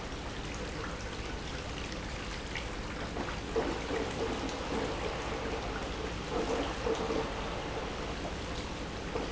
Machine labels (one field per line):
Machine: pump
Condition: abnormal